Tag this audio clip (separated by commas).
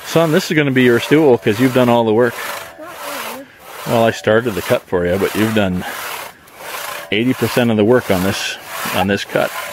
Rub, Sawing, Wood